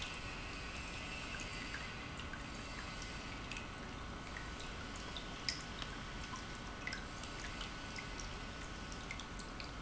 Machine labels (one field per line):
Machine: pump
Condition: normal